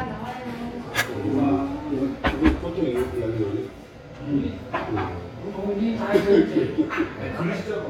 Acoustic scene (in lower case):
restaurant